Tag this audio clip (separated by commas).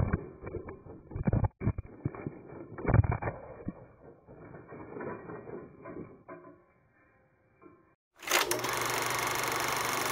outside, rural or natural